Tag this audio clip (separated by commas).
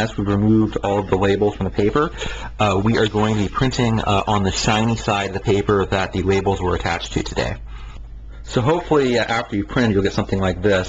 Speech